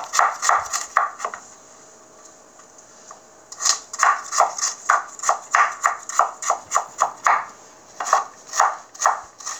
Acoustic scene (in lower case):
kitchen